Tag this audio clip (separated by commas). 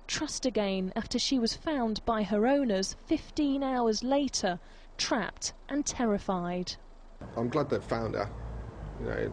Speech